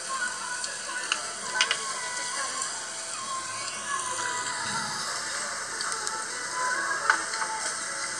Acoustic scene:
restaurant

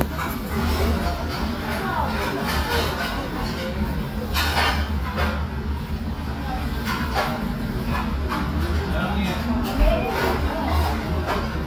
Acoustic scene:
restaurant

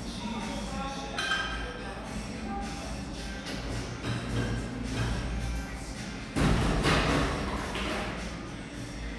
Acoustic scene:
cafe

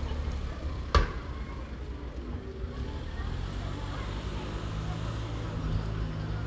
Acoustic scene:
residential area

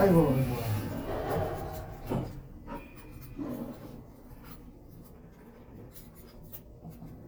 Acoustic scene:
elevator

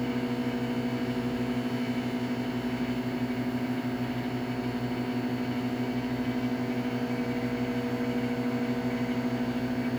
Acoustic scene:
kitchen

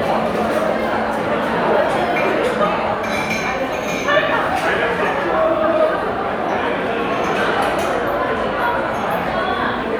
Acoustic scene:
crowded indoor space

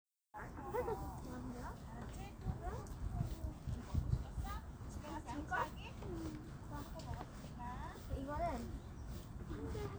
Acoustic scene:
park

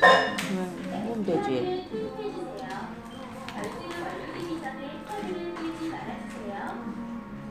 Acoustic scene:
crowded indoor space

